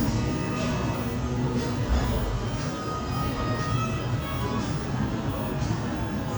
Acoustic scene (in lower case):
cafe